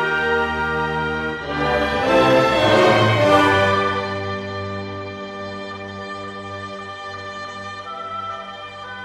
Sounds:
music, tender music

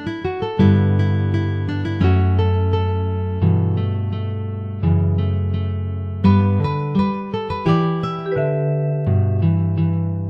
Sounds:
plucked string instrument, guitar, musical instrument, music, strum

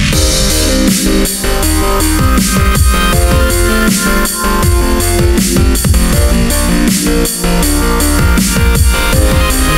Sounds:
music, synthesizer

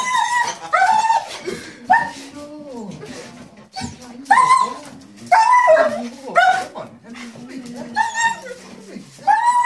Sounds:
dog whimpering

